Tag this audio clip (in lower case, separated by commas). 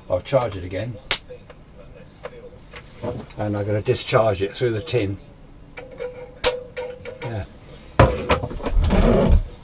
inside a small room, radio, speech